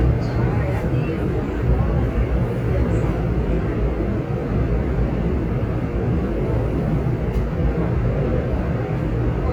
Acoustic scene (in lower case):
subway train